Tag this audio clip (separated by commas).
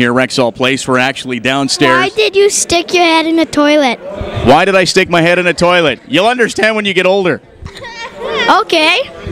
Speech